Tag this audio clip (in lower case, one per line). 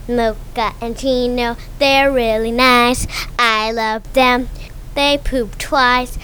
human voice
singing